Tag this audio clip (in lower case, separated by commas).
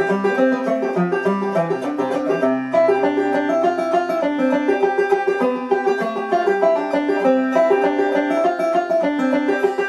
banjo, music, playing banjo